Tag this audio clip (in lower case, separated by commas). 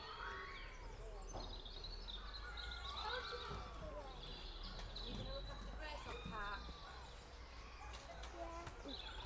speech